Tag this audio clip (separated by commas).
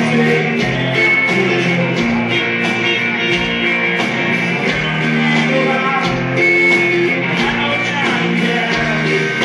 Music, Country